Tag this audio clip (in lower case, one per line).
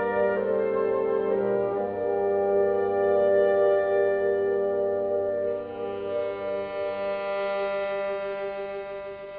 violin
musical instrument
music